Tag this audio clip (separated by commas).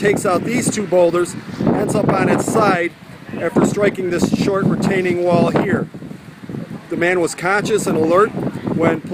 Speech